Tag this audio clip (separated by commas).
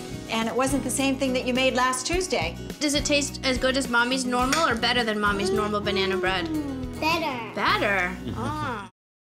Music, Speech